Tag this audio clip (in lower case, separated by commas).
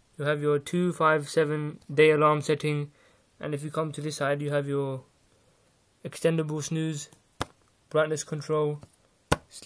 speech